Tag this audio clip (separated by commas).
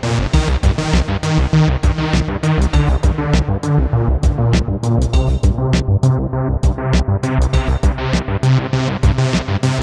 Sound effect, Music